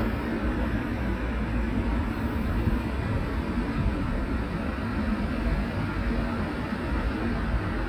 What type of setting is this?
residential area